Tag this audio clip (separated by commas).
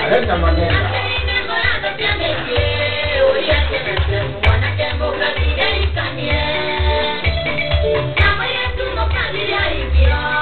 Music, Speech